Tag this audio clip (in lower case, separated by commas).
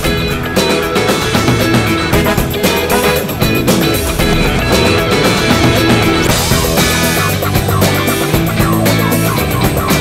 music